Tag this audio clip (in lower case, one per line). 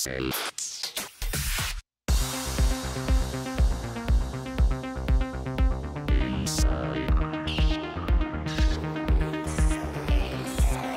music